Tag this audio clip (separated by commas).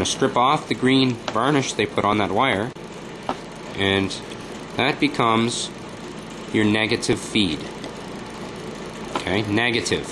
Speech